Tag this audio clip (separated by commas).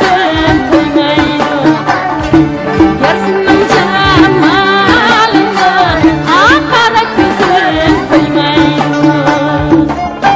Traditional music, Folk music, Music